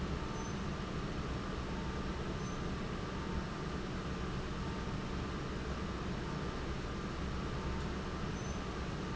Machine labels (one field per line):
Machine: fan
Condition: abnormal